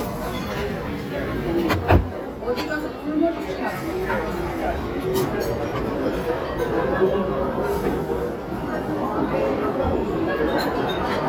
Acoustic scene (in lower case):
restaurant